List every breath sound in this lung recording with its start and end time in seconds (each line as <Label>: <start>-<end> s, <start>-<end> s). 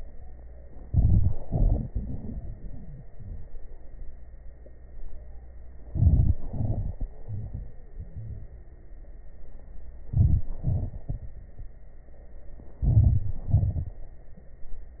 Inhalation: 0.79-1.43 s, 5.81-6.43 s, 10.02-10.63 s, 12.79-13.50 s
Exhalation: 1.43-3.60 s, 6.47-7.08 s, 10.68-11.46 s, 13.52-14.22 s
Crackles: 0.77-1.38 s, 1.43-3.60 s, 5.81-6.43 s, 6.47-7.08 s, 10.02-10.63 s, 10.68-11.46 s, 12.79-13.50 s, 13.52-14.22 s